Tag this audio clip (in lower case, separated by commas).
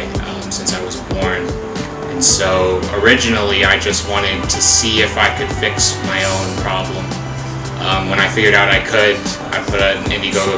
inside a small room, speech, music